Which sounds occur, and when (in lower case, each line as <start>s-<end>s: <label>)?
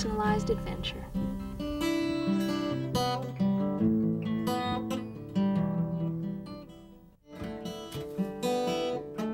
0.0s-1.1s: female speech
0.0s-9.3s: music
7.3s-7.5s: generic impact sounds
7.9s-8.1s: generic impact sounds